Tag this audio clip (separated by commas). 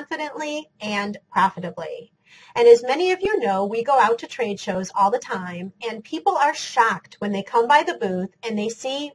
Speech